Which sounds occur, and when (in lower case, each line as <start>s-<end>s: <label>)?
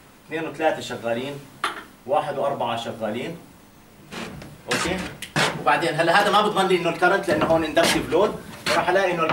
0.0s-9.3s: mechanisms
0.3s-1.4s: man speaking
1.6s-1.9s: generic impact sounds
2.0s-3.4s: man speaking
4.0s-4.5s: writing
4.1s-4.5s: generic impact sounds
4.6s-5.1s: man speaking
4.7s-5.6s: generic impact sounds
5.6s-8.4s: man speaking
6.1s-6.3s: generic impact sounds
6.5s-7.0s: speech
7.2s-7.6s: generic impact sounds
7.2s-7.7s: speech
7.7s-8.3s: generic impact sounds
8.5s-8.8s: generic impact sounds
8.7s-9.3s: man speaking